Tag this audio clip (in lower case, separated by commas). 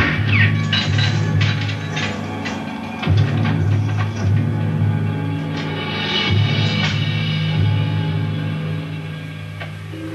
music